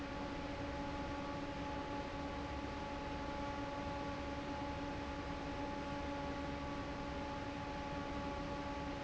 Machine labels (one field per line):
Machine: fan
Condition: normal